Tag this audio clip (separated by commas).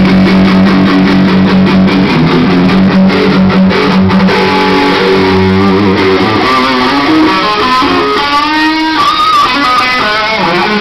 Music